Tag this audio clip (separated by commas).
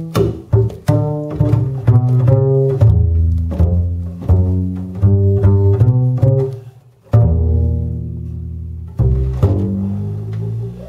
Pizzicato, Bowed string instrument, Cello